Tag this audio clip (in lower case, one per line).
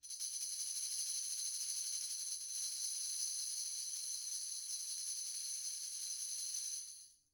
music
musical instrument
tambourine
percussion